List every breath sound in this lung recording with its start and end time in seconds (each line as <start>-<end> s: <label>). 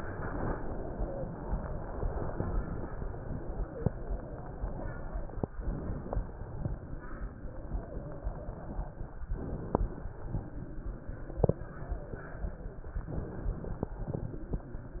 5.56-6.43 s: inhalation
6.53-9.13 s: exhalation
9.27-10.14 s: inhalation
10.28-12.96 s: exhalation
13.06-13.93 s: inhalation